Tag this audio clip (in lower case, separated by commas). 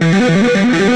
music, electric guitar, guitar, musical instrument, plucked string instrument